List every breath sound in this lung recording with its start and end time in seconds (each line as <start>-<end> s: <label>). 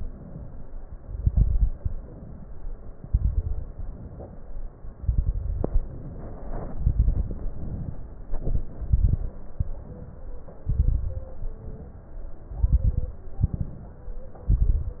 0.00-0.62 s: inhalation
1.16-1.95 s: exhalation
1.16-1.95 s: crackles
2.00-2.92 s: inhalation
2.98-3.74 s: exhalation
2.98-3.74 s: crackles
3.74-4.67 s: inhalation
5.04-5.79 s: exhalation
5.04-5.79 s: crackles
5.80-6.72 s: inhalation
6.75-7.50 s: exhalation
6.75-7.50 s: crackles
7.54-8.02 s: inhalation
8.42-9.35 s: exhalation
8.42-9.35 s: crackles
9.60-10.34 s: inhalation
10.66-11.40 s: exhalation
10.66-11.40 s: crackles
11.61-12.35 s: inhalation
12.50-13.24 s: exhalation
12.50-13.24 s: crackles
13.47-14.21 s: inhalation
13.47-14.21 s: crackles
14.50-15.00 s: exhalation
14.50-15.00 s: crackles